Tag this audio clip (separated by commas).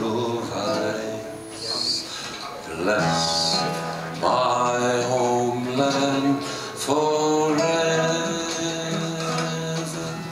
Music